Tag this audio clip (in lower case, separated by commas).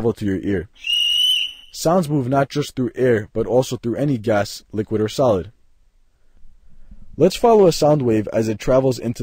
speech